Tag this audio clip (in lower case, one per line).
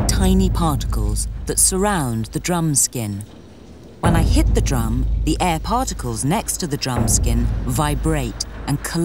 speech